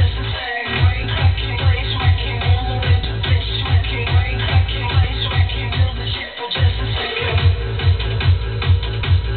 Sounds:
music

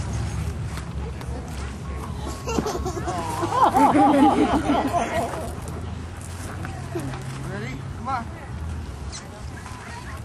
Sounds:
speech

